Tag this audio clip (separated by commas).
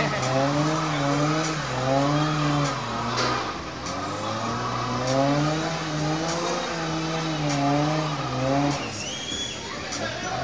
Vehicle, Speech, Car